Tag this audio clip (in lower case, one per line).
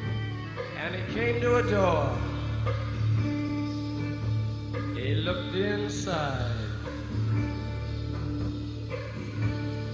music
speech